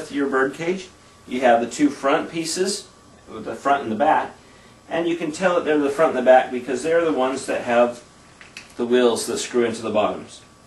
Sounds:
speech

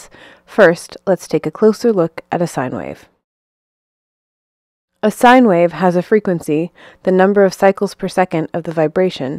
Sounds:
speech

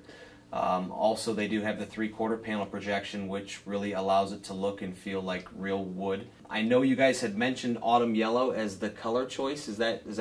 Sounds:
speech

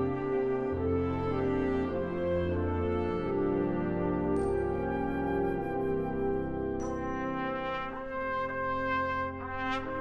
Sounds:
brass instrument, trumpet

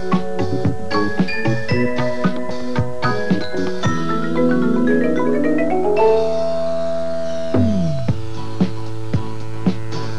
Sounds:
music, marimba, percussion

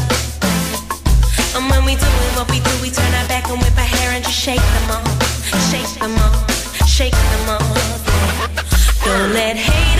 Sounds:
music

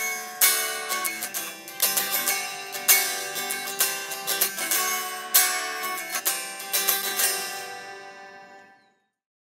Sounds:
music

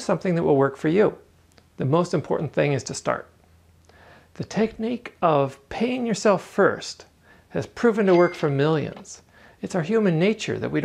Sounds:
speech

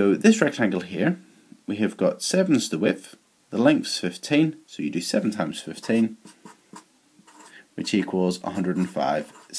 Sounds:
inside a small room, writing, speech

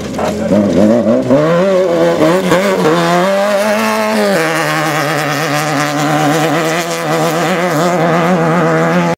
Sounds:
vehicle, car

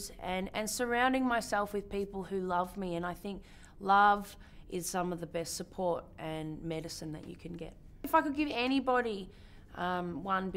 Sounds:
inside a small room, speech

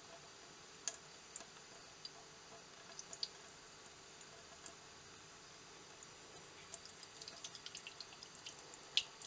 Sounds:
water, water tap, sink (filling or washing)

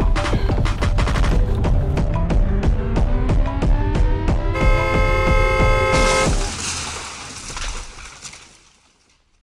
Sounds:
car passing by, music

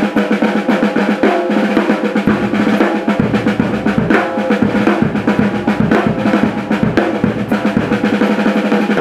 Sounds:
playing drum kit, bass drum, musical instrument, music, drum, drum kit

